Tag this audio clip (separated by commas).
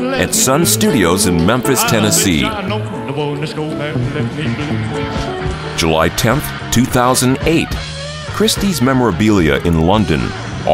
Music, Speech